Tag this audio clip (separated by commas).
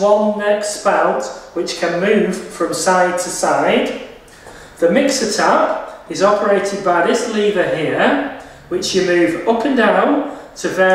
Speech